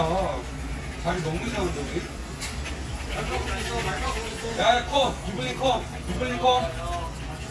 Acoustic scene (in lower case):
crowded indoor space